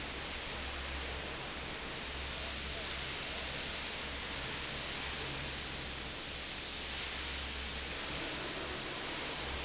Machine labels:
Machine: fan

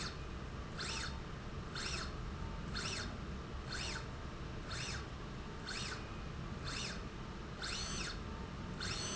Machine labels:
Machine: slide rail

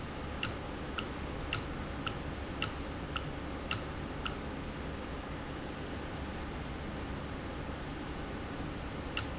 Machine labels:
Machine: valve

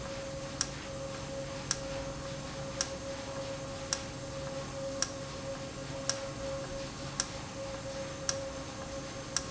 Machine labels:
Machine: valve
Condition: normal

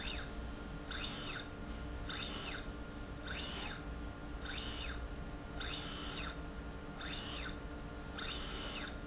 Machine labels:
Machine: slide rail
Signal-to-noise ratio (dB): 0 dB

